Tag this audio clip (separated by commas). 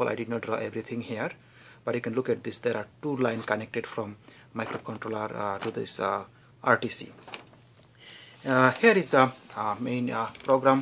Speech